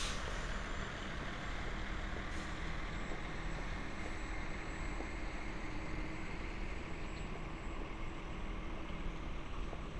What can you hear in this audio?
large-sounding engine